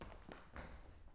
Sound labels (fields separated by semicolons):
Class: footsteps; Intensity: high